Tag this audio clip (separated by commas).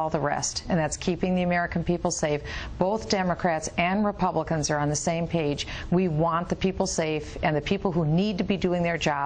Narration, Speech, Female speech